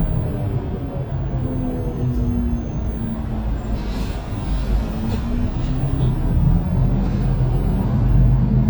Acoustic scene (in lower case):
bus